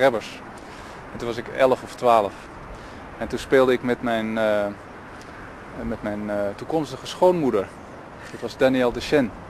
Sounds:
Speech

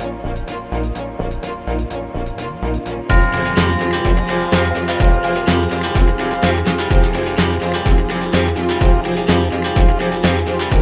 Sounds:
Music

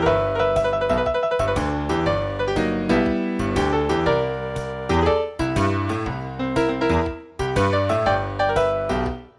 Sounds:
Music, Tender music

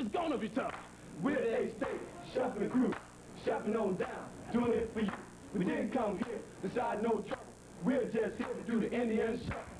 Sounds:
Speech

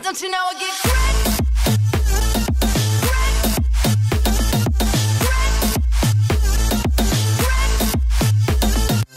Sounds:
Music

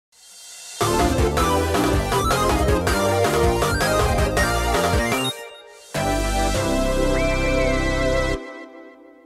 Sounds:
Music, Synthesizer

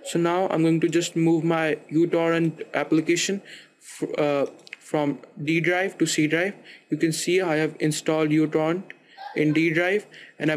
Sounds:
Speech

